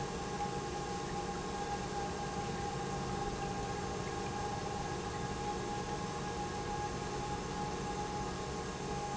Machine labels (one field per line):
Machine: pump